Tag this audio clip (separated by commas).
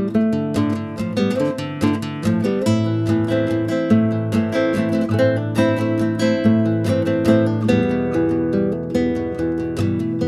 Music, Guitar, Musical instrument